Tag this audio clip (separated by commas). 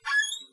Squeak